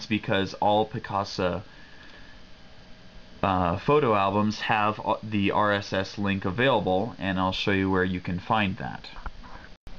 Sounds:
Speech, inside a small room

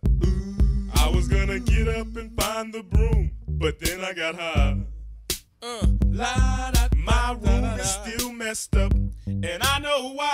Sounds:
Music

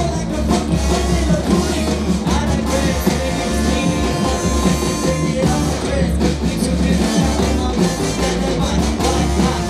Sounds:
Dubstep, Music

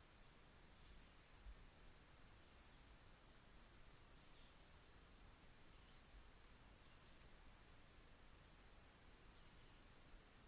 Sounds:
Silence

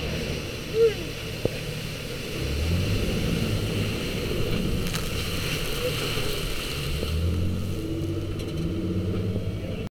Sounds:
Speech

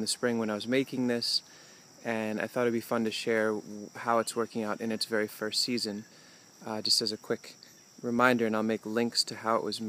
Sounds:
Speech

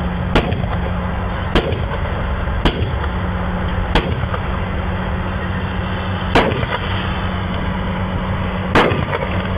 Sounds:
Vehicle

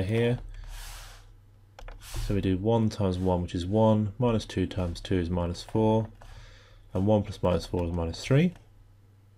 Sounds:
Speech

